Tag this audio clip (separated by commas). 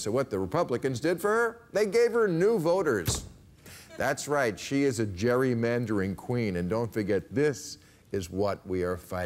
Speech